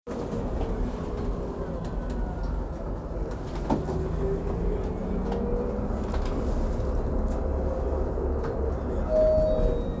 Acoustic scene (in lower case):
bus